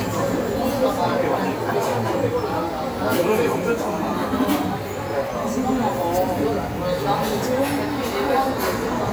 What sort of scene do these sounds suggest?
cafe